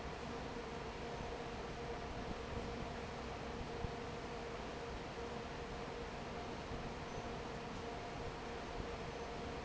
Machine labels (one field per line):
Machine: fan